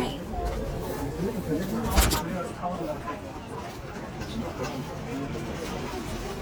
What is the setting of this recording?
subway train